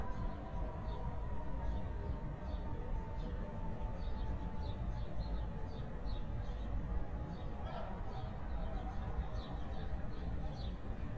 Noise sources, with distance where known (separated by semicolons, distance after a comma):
person or small group talking, far